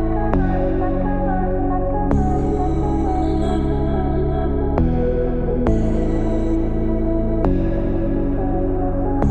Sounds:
music

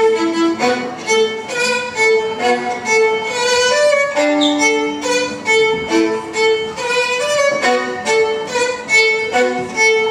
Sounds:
music
musical instrument
violin

